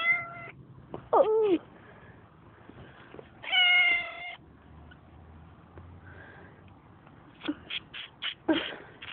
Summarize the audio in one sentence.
A cat is meowing, a young person speaks, and scraping occurs